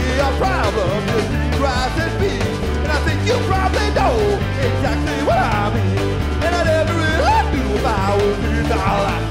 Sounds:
music

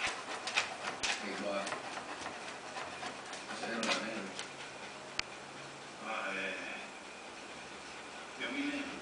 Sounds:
speech

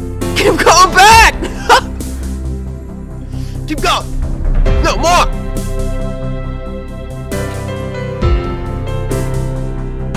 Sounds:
music, speech

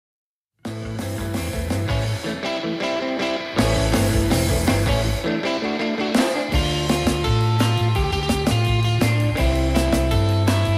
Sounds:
music

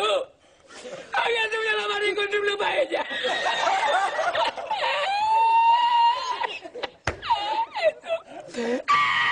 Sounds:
speech

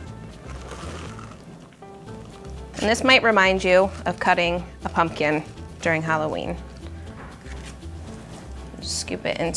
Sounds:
music, speech

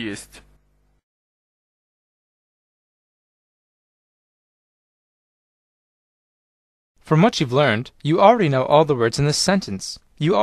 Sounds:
speech synthesizer, speech

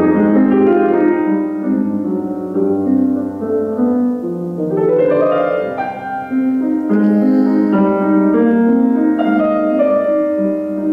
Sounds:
tender music, music

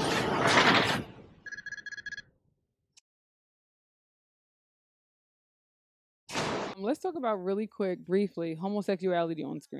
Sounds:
speech

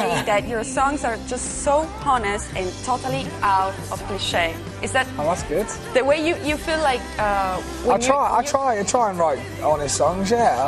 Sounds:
speech, jazz, rhythm and blues, music

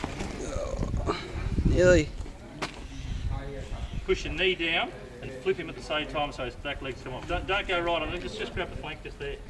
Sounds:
speech

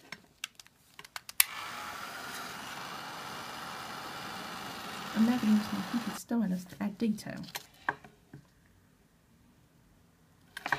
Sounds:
speech, inside a small room

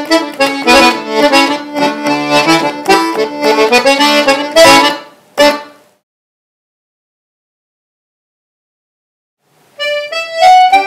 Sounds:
accordion, harmonica, playing accordion, music, musical instrument

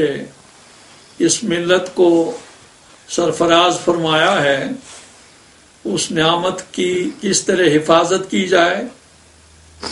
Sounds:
speech, inside a small room

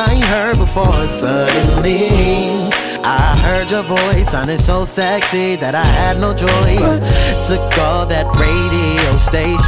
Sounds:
music

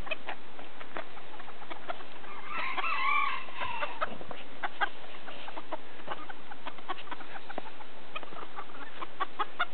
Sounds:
bird, fowl, chicken

